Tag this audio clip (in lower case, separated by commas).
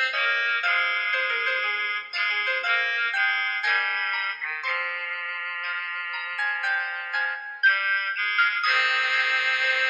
musical instrument, keyboard (musical), classical music, bowed string instrument, music, fiddle, piano